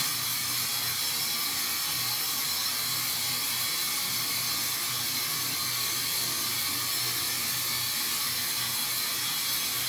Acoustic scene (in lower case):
restroom